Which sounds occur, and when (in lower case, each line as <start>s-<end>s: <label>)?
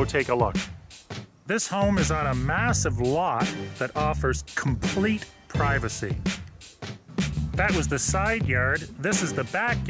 0.0s-9.8s: music
0.0s-0.8s: man speaking
1.4s-3.6s: man speaking
3.7s-5.2s: man speaking
5.4s-6.1s: man speaking
7.5s-8.7s: man speaking
9.0s-9.8s: man speaking